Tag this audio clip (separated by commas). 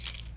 Percussion, Rattle (instrument), Music, Musical instrument